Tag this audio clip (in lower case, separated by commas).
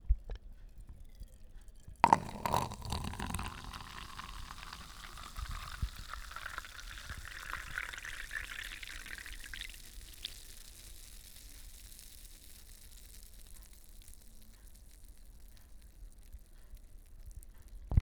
liquid